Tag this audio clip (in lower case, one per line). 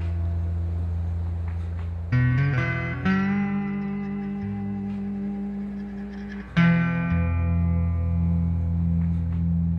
music